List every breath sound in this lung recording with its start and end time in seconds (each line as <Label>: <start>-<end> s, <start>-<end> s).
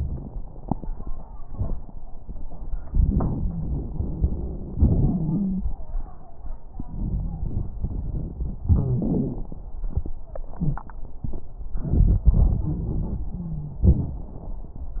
Inhalation: 2.87-4.74 s, 6.77-8.62 s, 11.76-13.37 s
Exhalation: 4.74-5.67 s, 8.62-9.59 s, 13.84-15.00 s
Wheeze: 4.74-5.67 s, 8.62-9.48 s, 13.38-13.84 s
Crackles: 2.87-4.74 s, 6.77-8.62 s, 11.76-13.37 s